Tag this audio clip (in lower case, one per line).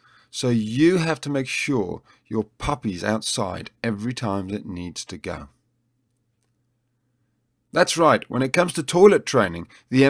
speech